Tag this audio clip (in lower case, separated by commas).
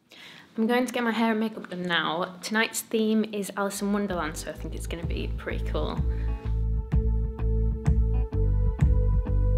speech, music